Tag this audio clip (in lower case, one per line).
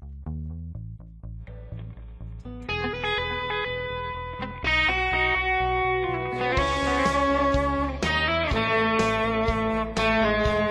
plucked string instrument
music
tapping (guitar technique)
electric guitar
guitar
musical instrument